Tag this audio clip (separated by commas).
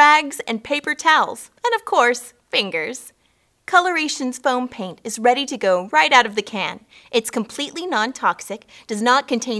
Speech